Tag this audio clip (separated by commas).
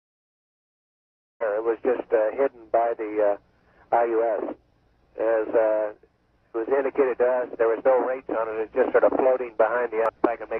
Speech